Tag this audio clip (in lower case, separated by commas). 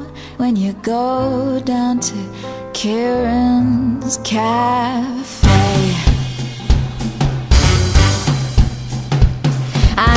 music